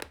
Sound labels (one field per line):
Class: object falling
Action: being thrown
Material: cardboard